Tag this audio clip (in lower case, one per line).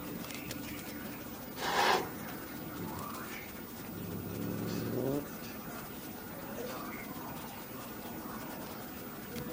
cat growling